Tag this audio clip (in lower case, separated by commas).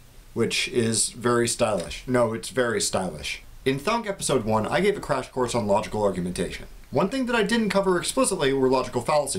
speech